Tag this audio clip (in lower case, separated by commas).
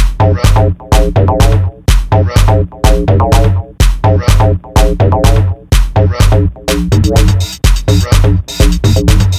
drum machine, electronic music, music